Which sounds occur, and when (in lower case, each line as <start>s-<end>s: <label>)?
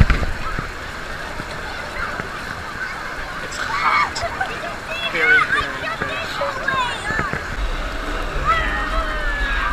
0.0s-9.7s: hubbub
0.0s-9.7s: water
3.4s-4.3s: man speaking
5.1s-6.5s: man speaking